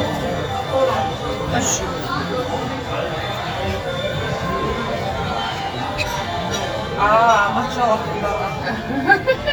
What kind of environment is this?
restaurant